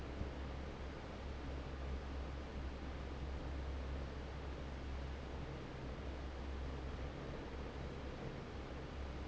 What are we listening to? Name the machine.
fan